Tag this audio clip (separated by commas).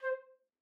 Musical instrument, Music, Wind instrument